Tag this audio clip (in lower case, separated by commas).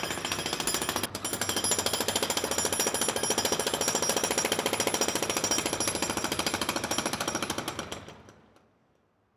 tools